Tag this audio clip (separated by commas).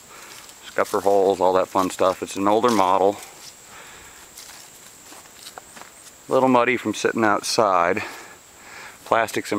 Speech